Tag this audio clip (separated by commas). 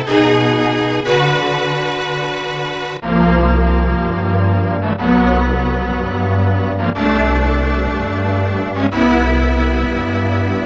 Video game music, Music